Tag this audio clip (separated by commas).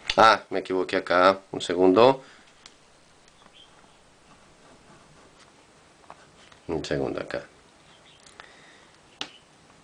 Writing, Speech